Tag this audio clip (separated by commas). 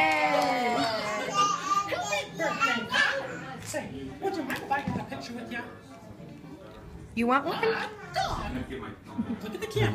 Speech, inside a large room or hall, Music